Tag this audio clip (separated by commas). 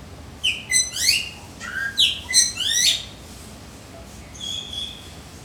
Animal, Bird, Wild animals